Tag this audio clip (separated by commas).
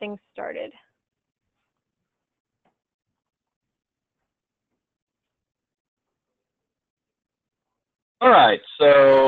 Speech